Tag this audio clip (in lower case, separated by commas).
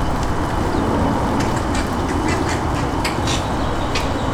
bird, animal, wild animals